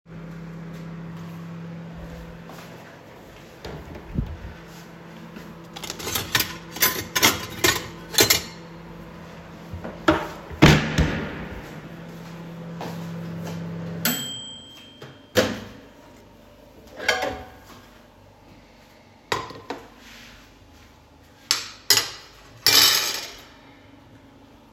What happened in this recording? the microwave was already on, I got my utensils then got back to the microwave and turned it off, got my dish out and put my spoon on the dish